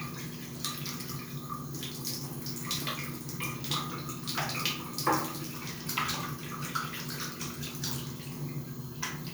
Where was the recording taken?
in a restroom